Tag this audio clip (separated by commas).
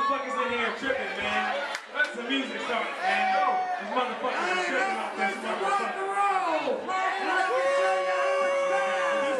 Speech